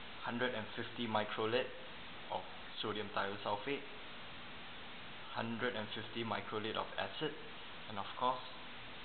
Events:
[0.00, 9.04] mechanisms
[0.23, 1.84] man speaking
[2.25, 2.44] man speaking
[2.73, 3.80] man speaking
[5.22, 7.53] man speaking
[7.83, 8.54] man speaking

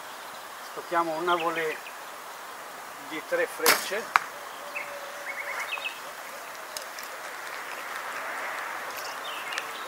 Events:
[0.00, 9.85] background noise
[0.00, 9.85] insect
[2.35, 2.47] clicking
[3.15, 4.15] man speaking
[3.65, 4.37] arrow
[7.39, 9.85] vehicle
[9.13, 9.85] human voice
[9.30, 9.85] chirp
[9.56, 9.72] generic impact sounds

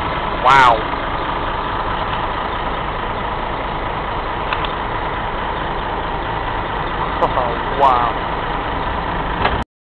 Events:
[0.00, 9.60] heavy engine (low frequency)
[0.38, 0.74] male speech
[4.32, 4.64] generic impact sounds
[7.05, 7.53] laughter
[7.69, 8.11] male speech
[9.34, 9.61] generic impact sounds

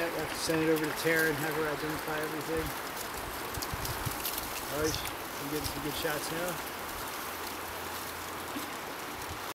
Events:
[0.00, 0.24] male speech
[0.00, 9.37] rustle
[0.00, 9.37] wind
[0.45, 2.66] male speech
[4.67, 5.16] male speech
[5.38, 6.58] male speech

